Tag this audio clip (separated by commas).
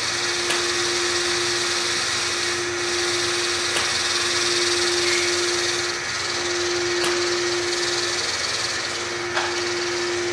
Power tool, Tools